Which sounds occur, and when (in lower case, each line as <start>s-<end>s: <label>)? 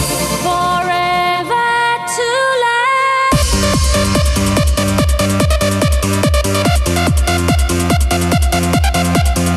0.0s-9.5s: music
0.4s-3.5s: female singing